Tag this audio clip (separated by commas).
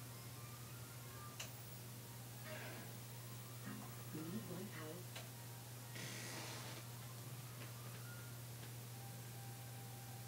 Television, Music